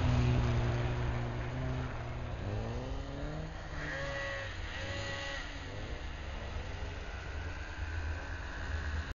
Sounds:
vehicle, car

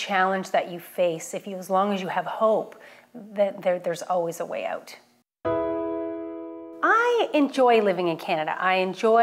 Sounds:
speech, music, woman speaking

